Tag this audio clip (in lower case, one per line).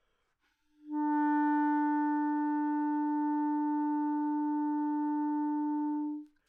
music
wind instrument
musical instrument